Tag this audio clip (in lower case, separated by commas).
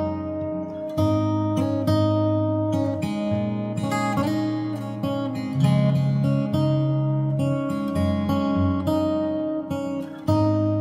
music, plucked string instrument, acoustic guitar, musical instrument